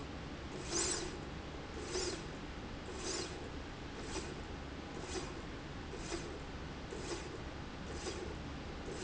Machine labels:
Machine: slide rail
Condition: normal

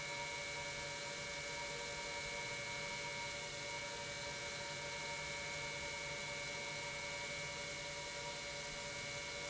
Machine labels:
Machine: pump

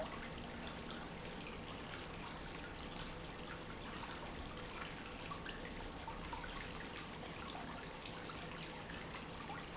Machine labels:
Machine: pump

